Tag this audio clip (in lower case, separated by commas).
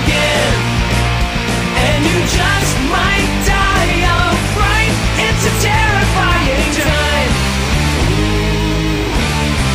music